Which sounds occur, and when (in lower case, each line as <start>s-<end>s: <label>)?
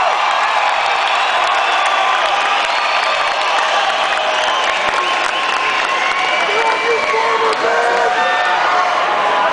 0.0s-9.5s: crowd
0.0s-9.5s: shout
0.2s-6.9s: applause
6.4s-8.2s: male speech
7.4s-7.6s: applause